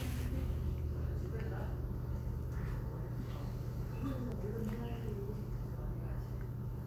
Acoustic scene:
crowded indoor space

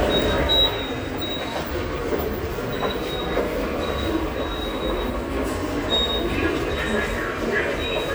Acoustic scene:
subway station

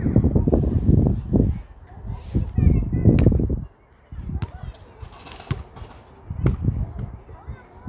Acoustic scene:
park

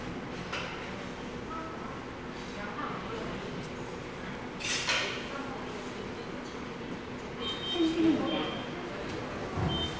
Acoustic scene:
subway station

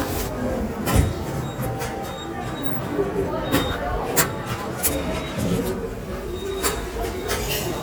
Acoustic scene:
subway station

